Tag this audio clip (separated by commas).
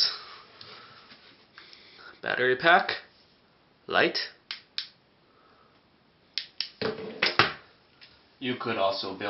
Speech